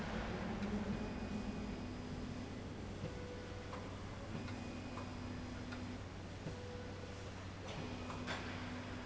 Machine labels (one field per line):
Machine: slide rail